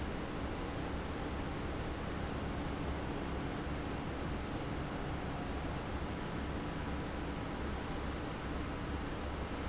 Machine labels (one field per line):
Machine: fan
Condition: abnormal